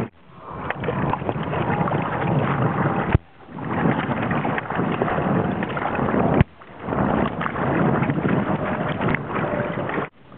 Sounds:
outside, rural or natural, Boat, Rowboat, Vehicle

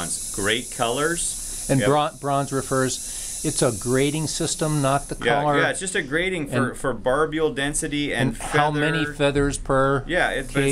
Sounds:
Speech

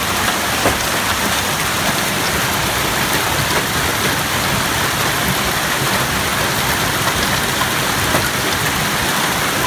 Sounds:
hail

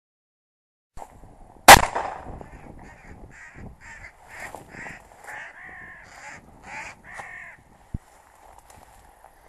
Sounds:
Caw, Animal, Crow

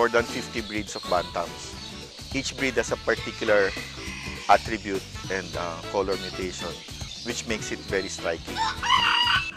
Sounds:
rooster, Speech, Music

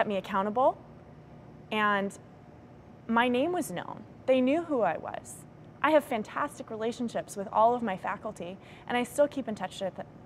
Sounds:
Speech, woman speaking

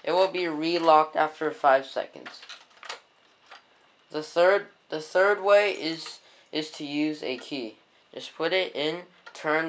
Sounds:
Speech

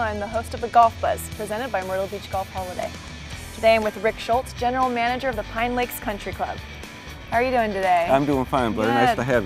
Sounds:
Music, Speech

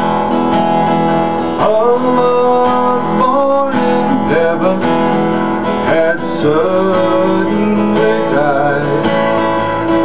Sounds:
Music

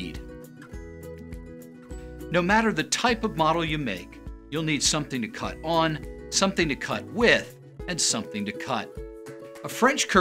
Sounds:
Music, Speech

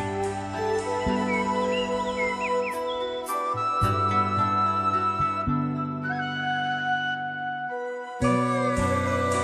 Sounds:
Music, outside, rural or natural

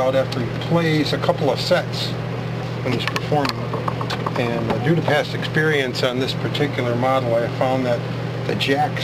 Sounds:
Speech

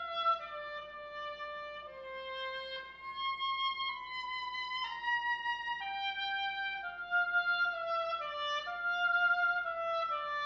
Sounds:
Violin, Musical instrument, Music

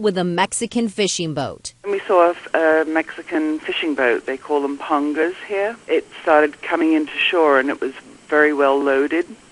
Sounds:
Speech

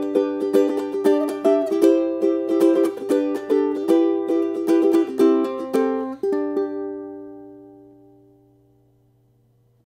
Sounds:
Music

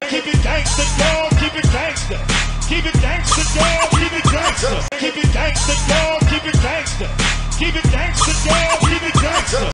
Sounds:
Music

